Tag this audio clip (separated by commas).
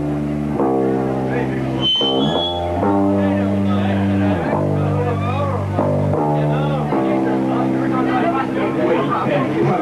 Speech, Music